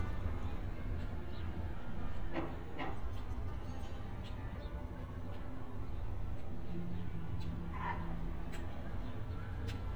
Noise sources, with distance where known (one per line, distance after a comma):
music from a fixed source, far